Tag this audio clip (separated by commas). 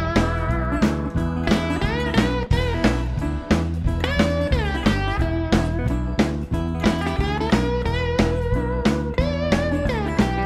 Guitar, Musical instrument, Strum, Plucked string instrument, Music